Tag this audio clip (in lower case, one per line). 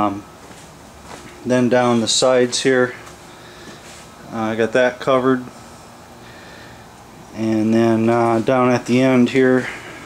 speech